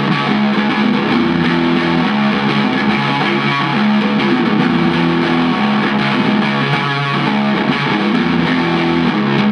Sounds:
Electric guitar, Strum, Music, Musical instrument, Guitar, Plucked string instrument

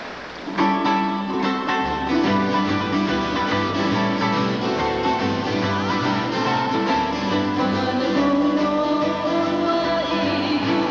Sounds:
Flamenco, Music

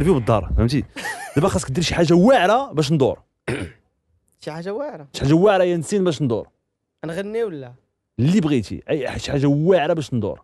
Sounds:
Speech

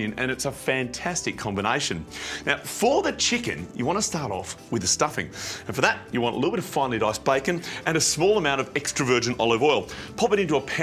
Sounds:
Music, Speech

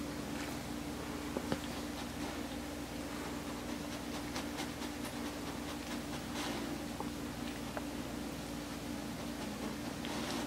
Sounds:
Dog, Animal

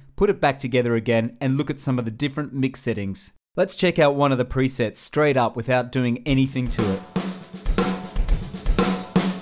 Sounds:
Drum kit, Music, Musical instrument, Speech, Drum

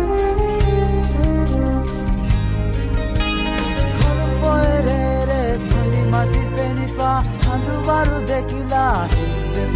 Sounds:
Music

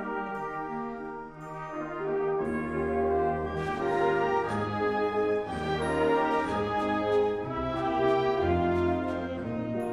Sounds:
Music

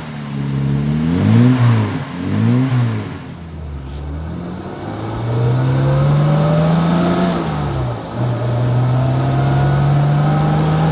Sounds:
Vehicle, Car

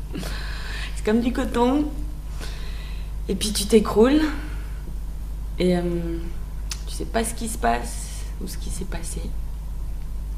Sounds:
Speech, monologue

